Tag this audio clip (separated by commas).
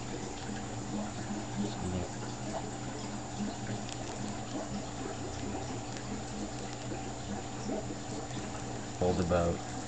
Patter, mouse pattering